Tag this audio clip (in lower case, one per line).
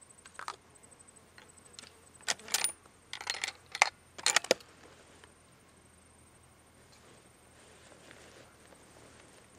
outside, rural or natural